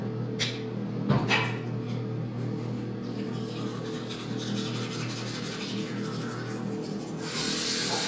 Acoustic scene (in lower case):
restroom